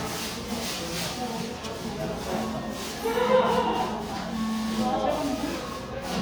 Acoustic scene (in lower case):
crowded indoor space